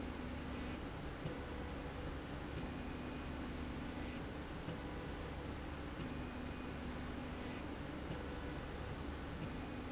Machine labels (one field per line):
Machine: slide rail